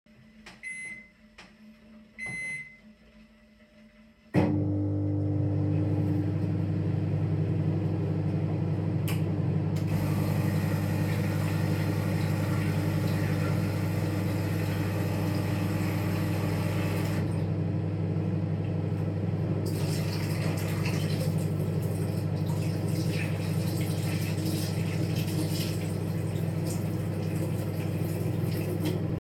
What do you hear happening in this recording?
I turned on the microwave, made a coffee and washed my hands.